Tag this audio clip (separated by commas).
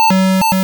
Alarm